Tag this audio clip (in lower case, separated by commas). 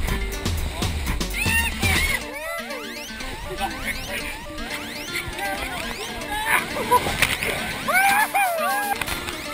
music